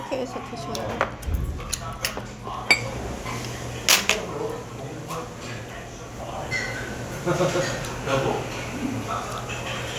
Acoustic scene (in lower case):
restaurant